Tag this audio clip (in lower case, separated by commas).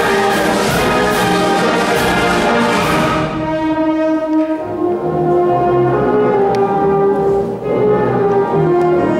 music, classical music, orchestra